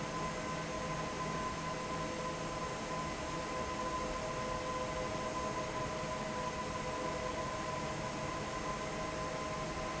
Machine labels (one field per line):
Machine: fan